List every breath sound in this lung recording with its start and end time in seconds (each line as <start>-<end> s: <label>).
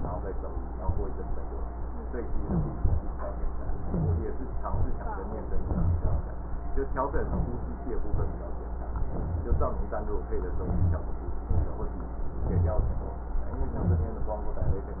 2.22-3.02 s: inhalation
3.66-4.46 s: inhalation
4.65-5.11 s: exhalation
5.46-6.26 s: inhalation
7.10-7.72 s: inhalation
7.89-8.35 s: exhalation
8.94-9.51 s: inhalation
10.49-11.12 s: inhalation
11.50-11.95 s: exhalation
12.39-13.02 s: inhalation
13.55-14.23 s: inhalation